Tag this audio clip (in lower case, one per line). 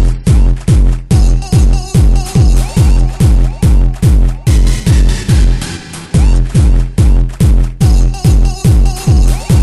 techno
electronic music
music